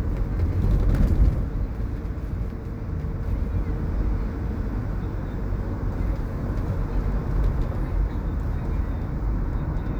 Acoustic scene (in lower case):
car